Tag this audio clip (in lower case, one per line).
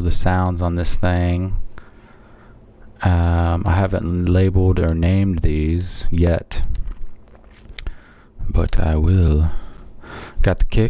speech